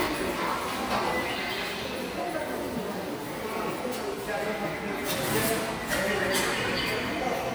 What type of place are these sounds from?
subway station